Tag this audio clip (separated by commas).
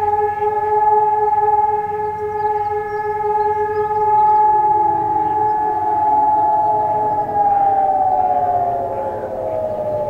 Siren